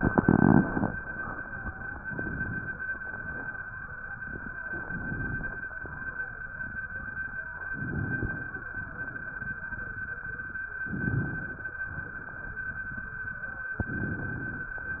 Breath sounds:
Inhalation: 2.07-2.81 s, 4.72-5.66 s, 7.69-8.63 s, 10.84-11.79 s, 13.83-14.78 s

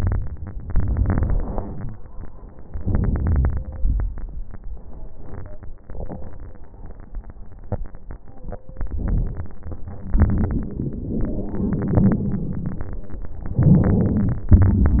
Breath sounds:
Inhalation: 0.66-1.58 s, 2.77-3.53 s, 8.81-9.56 s, 10.27-12.20 s, 13.62-14.52 s
Exhalation: 1.55-2.74 s, 3.60-4.55 s, 9.54-10.27 s, 12.20-13.59 s, 14.55-14.99 s

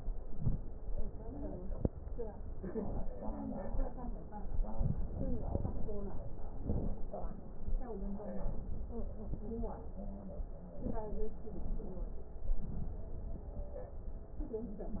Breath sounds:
Inhalation: 0.18-0.65 s, 6.60-7.07 s, 8.40-9.02 s, 10.77-11.39 s, 12.40-12.98 s

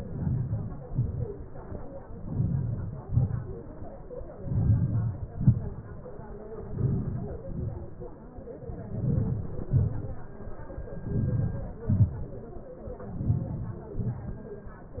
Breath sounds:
Inhalation: 0.00-0.63 s, 2.33-3.02 s, 4.55-5.17 s, 6.78-7.45 s, 9.00-9.63 s, 11.17-11.73 s, 13.27-13.81 s
Exhalation: 0.89-1.29 s, 3.10-3.60 s, 5.28-5.79 s, 7.56-7.96 s, 9.77-10.20 s, 11.88-12.29 s, 13.98-14.37 s

